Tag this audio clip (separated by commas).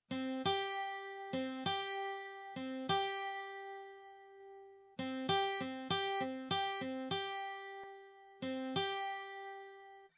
Music